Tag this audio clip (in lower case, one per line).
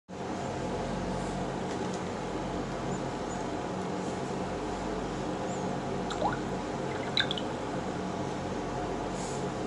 drip